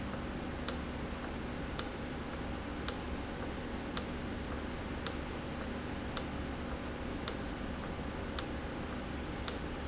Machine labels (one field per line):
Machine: valve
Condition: normal